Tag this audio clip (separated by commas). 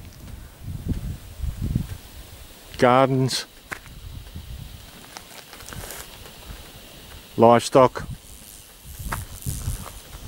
Speech